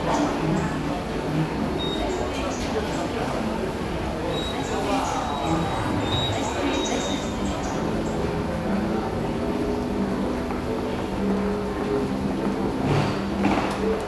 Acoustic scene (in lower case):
subway station